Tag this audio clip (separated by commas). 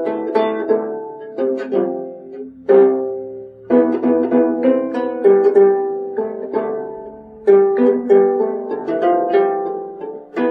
Musical instrument, Music, Mandolin